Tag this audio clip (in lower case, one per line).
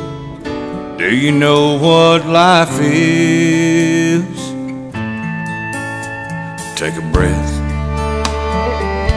music
speech
country